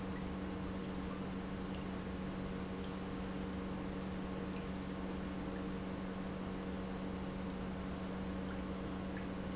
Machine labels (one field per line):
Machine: pump